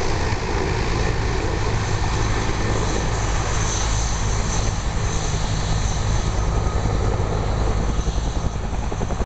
Loud humming of a distant helicopter